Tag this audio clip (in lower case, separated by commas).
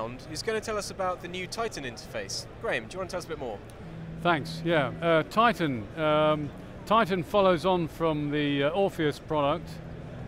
speech